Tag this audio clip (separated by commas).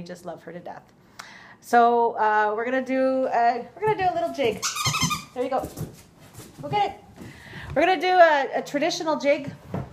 Speech